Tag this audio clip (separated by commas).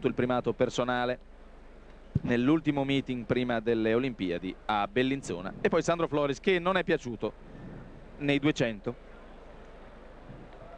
Speech, outside, urban or man-made